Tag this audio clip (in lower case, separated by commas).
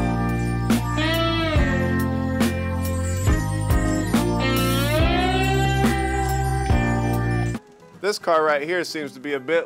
speech, music